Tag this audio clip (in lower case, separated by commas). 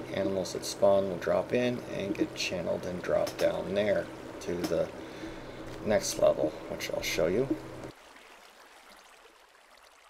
speech